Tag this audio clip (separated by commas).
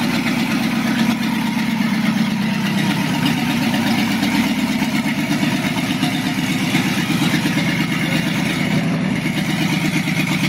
Car, Vehicle